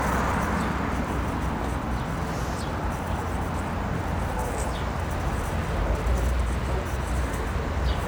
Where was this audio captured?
on a street